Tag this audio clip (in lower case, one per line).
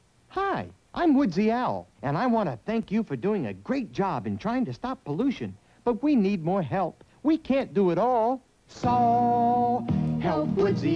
speech
music